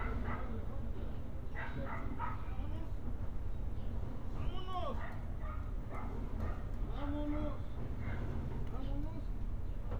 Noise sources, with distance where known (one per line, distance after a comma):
dog barking or whining, far